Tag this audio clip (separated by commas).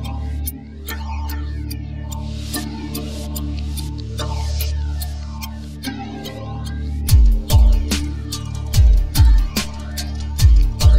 Music, Electronic music, Techno